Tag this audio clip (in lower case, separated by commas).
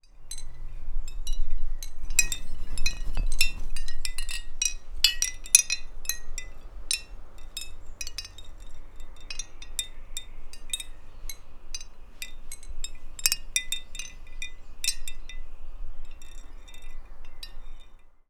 glass, chink